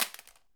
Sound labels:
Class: object falling